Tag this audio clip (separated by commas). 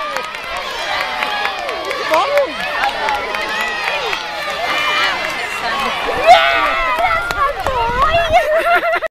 Speech, outside, urban or man-made